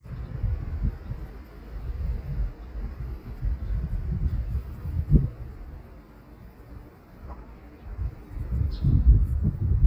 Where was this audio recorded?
in a residential area